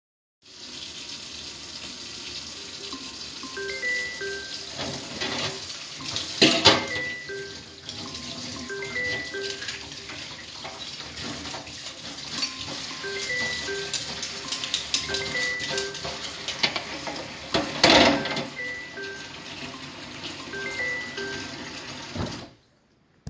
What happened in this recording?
I was washing some cutlery in the running water when a phone starts ringing beside me. I continue washing for a bit then turn off the water and then the ringing phone.